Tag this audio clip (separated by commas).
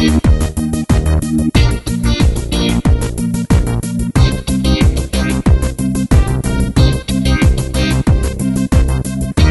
Music